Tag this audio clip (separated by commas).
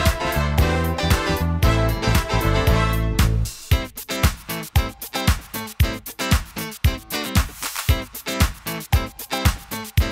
Music, Pop music, Dance music